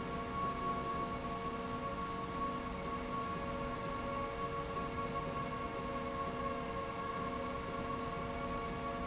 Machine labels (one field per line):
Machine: slide rail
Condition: normal